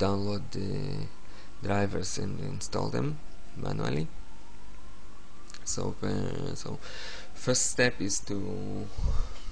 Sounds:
Speech

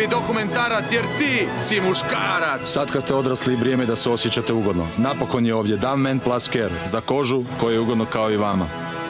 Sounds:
Music, Speech

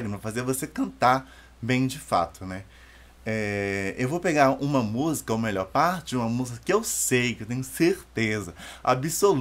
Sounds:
Speech

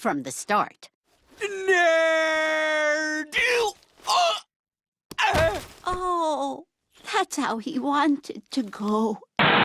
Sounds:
Speech

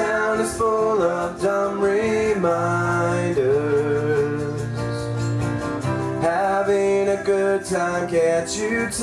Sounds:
Acoustic guitar, Guitar, Music, Musical instrument, Plucked string instrument

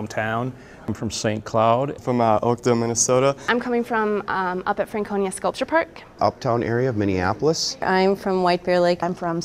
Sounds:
Speech

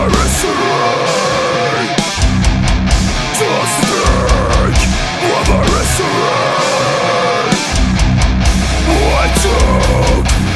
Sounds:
Heavy metal

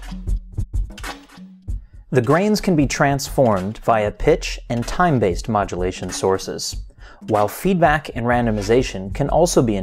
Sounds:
Speech, Music

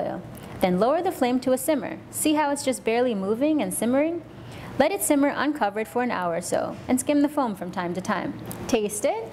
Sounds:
Speech

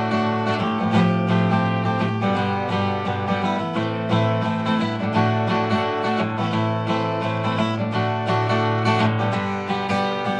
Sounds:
Music, Acoustic guitar, Guitar, Plucked string instrument, Strum, Musical instrument

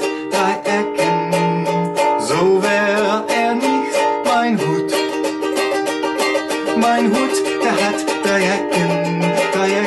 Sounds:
Ukulele, Music

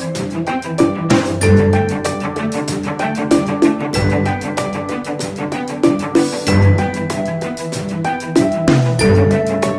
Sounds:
Music

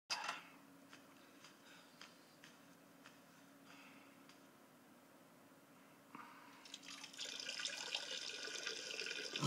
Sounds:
Water

